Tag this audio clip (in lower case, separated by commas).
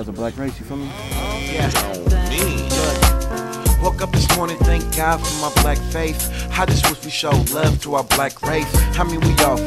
funk, music